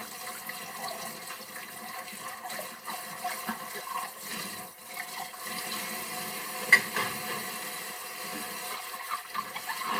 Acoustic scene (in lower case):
kitchen